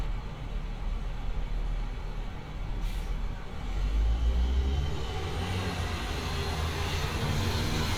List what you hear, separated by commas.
large-sounding engine